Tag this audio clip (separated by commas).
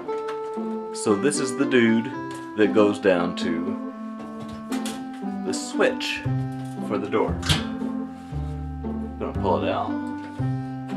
Music, Speech